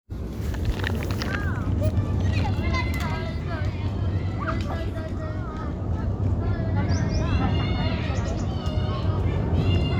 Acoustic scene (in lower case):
residential area